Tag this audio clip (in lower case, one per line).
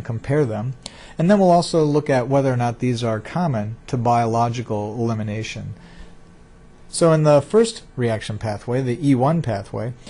speech